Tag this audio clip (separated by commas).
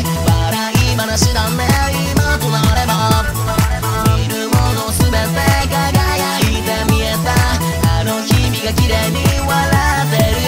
Music, Sampler